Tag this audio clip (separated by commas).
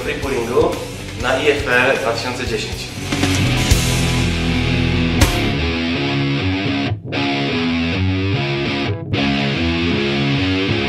Music, Speech